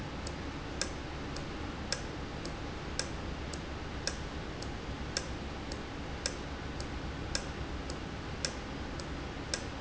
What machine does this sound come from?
valve